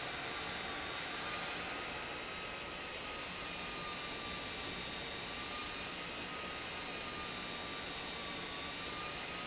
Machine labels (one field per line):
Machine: pump